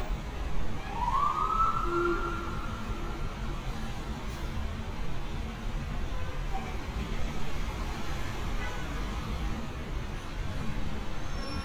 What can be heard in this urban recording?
large-sounding engine, car horn, siren